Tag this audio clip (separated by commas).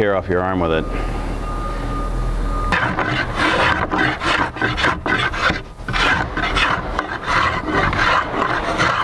Speech, Wood, Tools